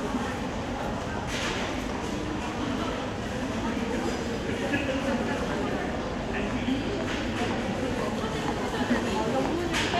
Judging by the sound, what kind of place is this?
crowded indoor space